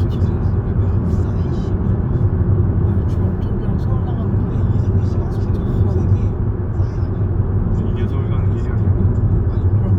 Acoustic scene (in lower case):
car